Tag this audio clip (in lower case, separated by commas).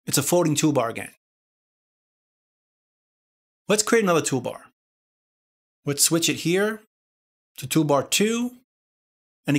speech, inside a small room